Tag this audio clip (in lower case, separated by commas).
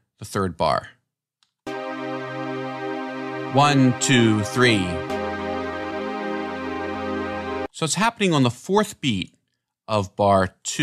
speech, music